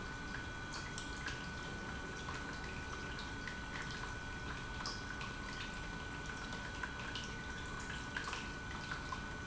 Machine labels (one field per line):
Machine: pump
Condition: normal